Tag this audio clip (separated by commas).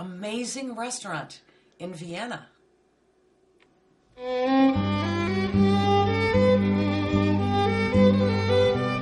Music, Speech